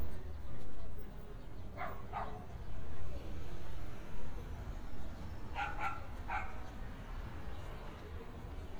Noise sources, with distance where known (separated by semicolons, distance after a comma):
dog barking or whining, far